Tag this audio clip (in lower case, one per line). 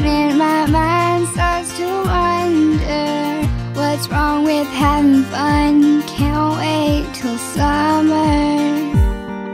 music
soundtrack music